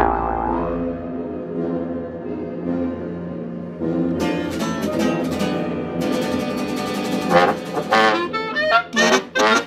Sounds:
Music

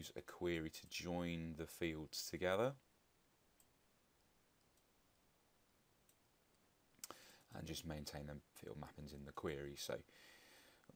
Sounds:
inside a small room, Clicking, Speech

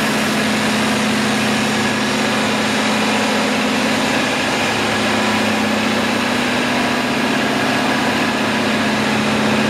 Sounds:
Heavy engine (low frequency), Idling, Engine

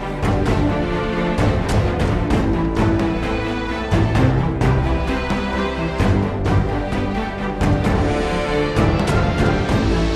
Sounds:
Theme music

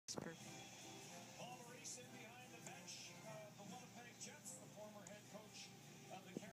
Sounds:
Speech

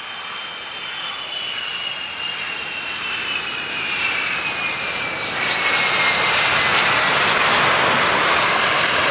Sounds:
Vehicle, Aircraft engine, airplane, outside, rural or natural

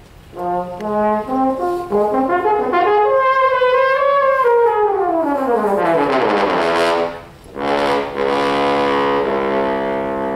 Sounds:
Trombone, Music, Brass instrument, playing trombone

